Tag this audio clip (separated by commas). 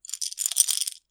Rattle